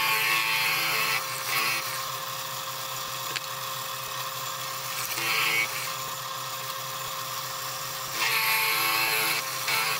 A machine motor is running, and deep vibrating humming occurs intermittently, then a click